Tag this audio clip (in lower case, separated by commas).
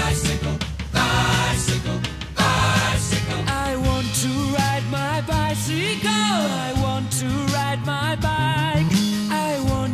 music